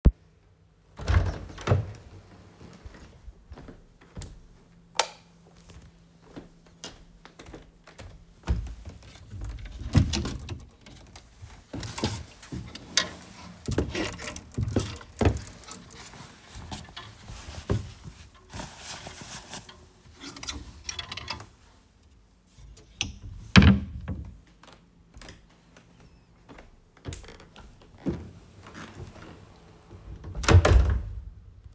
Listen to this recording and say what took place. I opened the door of the bedroom and turned on the light. I walked towards the wardrobe. opened it and got a shirt out. I closed the wardrobe and left the room, closing the door.